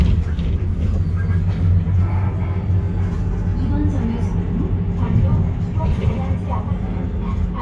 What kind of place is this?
bus